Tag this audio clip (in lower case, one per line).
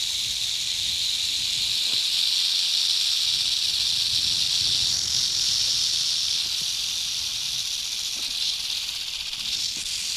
snake rattling